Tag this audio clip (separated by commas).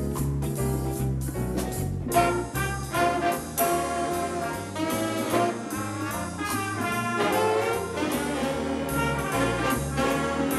Music, Jazz